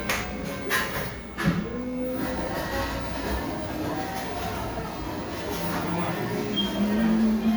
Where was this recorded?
in a cafe